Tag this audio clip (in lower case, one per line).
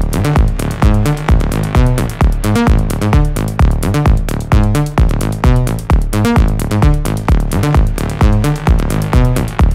music
sampler